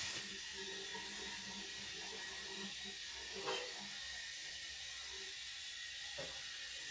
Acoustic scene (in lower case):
restroom